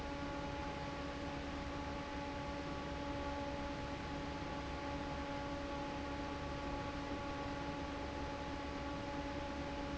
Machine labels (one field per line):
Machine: fan